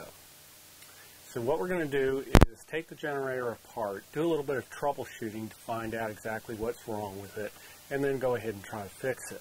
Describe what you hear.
An adult male speaks